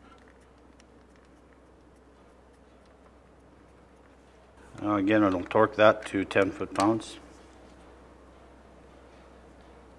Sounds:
Speech

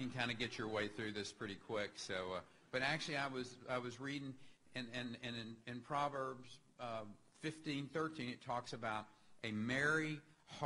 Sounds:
man speaking, monologue, Speech

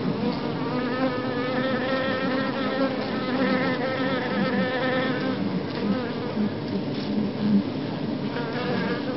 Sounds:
wasp, Insect, bee or wasp

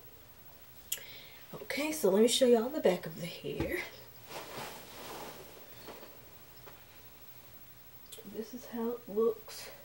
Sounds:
inside a small room, Speech

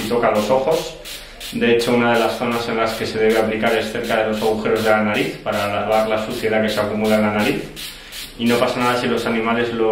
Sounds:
Speech

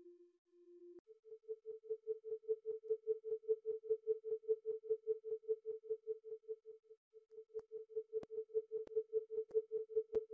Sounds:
Electronic tuner

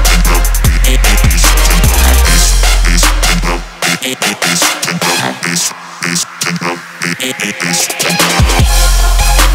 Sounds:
Music, Sound effect

